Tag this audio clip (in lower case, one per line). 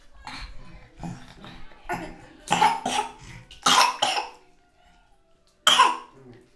respiratory sounds
cough